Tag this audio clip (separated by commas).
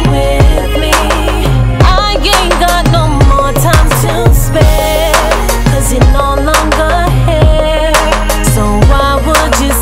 Music